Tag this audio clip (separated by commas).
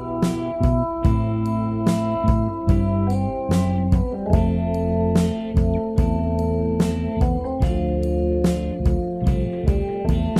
Music